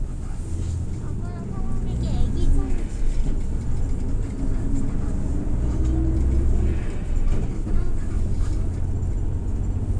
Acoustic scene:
bus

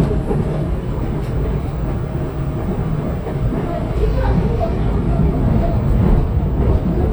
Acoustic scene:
subway train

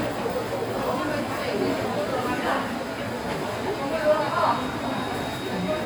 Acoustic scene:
crowded indoor space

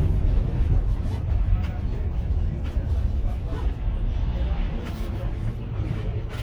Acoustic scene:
bus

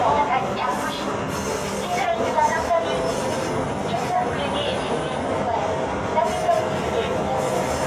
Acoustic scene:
subway train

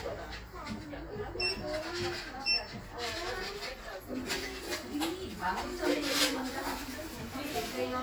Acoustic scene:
crowded indoor space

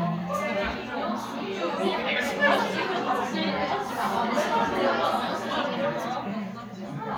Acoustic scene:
crowded indoor space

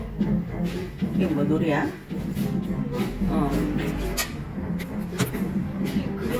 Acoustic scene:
cafe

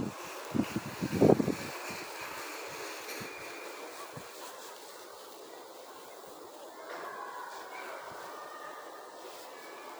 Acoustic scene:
residential area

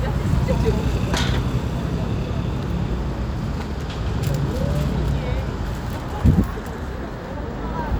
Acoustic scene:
street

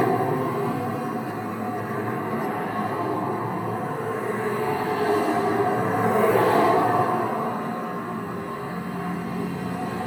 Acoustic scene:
street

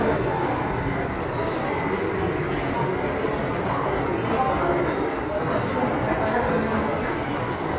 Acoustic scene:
subway station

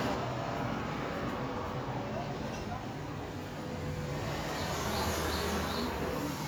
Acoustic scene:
residential area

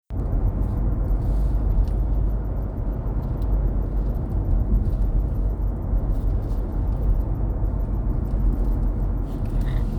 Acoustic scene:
car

